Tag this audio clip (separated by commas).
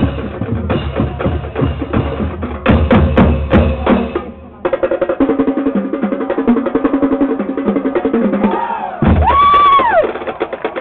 Music, Speech